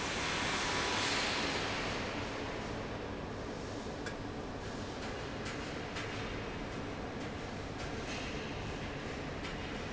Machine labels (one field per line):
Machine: fan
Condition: abnormal